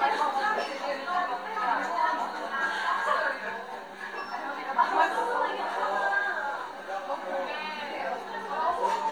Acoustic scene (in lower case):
cafe